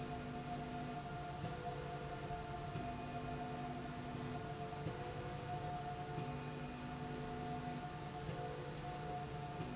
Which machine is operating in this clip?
slide rail